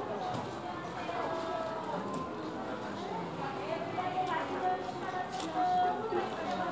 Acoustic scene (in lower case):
crowded indoor space